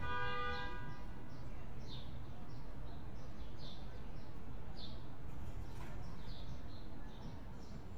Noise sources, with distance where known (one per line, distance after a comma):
car horn, near